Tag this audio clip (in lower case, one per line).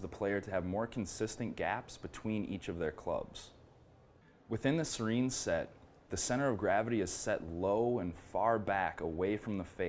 speech